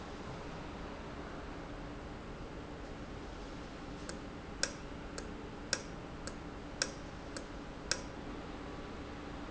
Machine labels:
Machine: valve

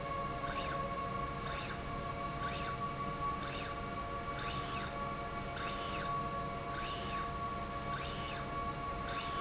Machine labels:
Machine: slide rail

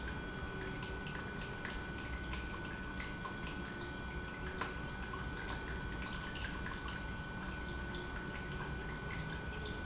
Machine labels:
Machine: pump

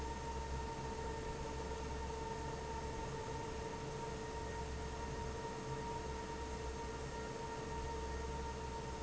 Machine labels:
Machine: fan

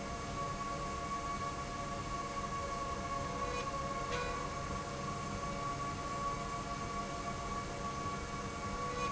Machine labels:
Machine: slide rail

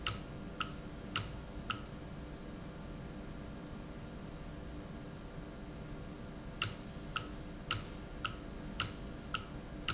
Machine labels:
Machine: valve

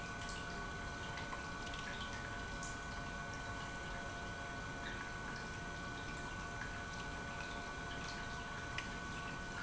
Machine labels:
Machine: pump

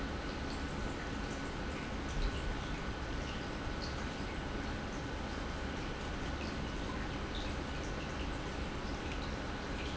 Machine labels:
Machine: pump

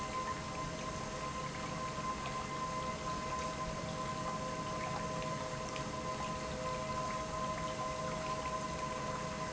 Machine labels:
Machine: pump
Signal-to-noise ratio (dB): -6 dB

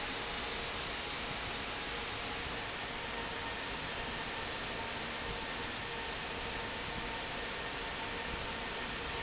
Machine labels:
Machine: fan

